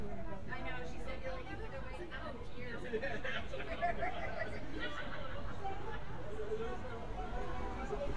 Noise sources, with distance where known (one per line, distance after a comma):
person or small group talking, near